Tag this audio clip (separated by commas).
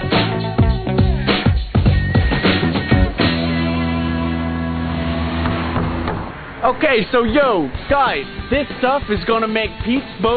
Vehicle, Music, Speech